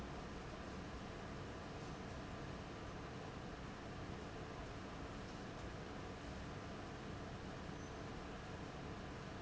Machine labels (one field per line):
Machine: fan